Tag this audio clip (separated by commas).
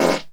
Fart